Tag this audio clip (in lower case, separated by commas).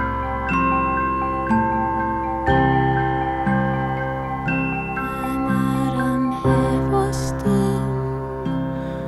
mallet percussion, xylophone, glockenspiel